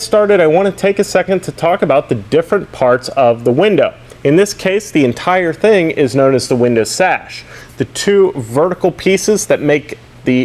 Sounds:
Speech

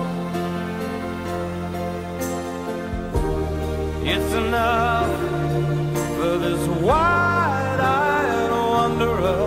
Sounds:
Music, Tender music

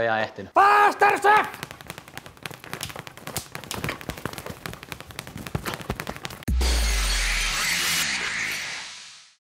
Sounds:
Speech

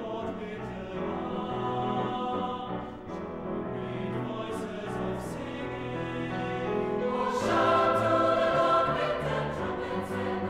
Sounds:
Music

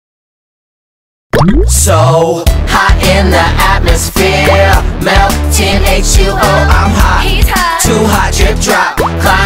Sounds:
Music, Drip

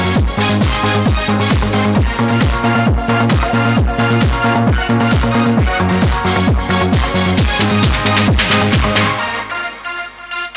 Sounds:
Synthesizer, Electronic music, Piano, Electric piano, Music, Keyboard (musical), Musical instrument, Trance music, Techno

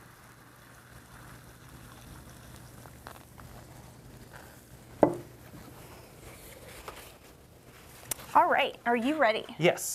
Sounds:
Liquid, Speech

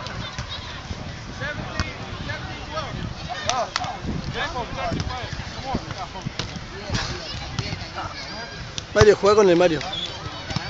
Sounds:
playing volleyball

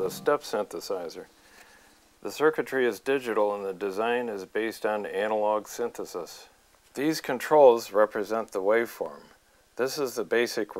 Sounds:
Speech

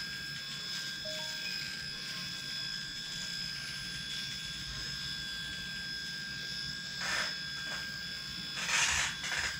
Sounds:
electric shaver

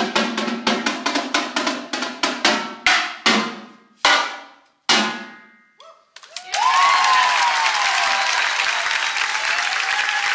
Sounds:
Drum, Percussion, Snare drum

